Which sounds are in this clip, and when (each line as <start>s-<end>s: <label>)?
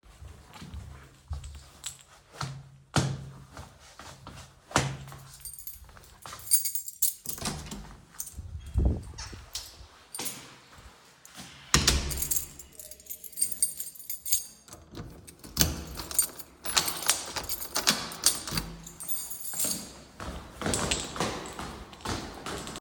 5.4s-5.8s: keys
6.2s-7.2s: keys
7.3s-7.8s: door
8.1s-10.4s: keys
11.6s-12.0s: door
11.7s-19.8s: keys
15.5s-18.6s: door
20.2s-22.8s: footsteps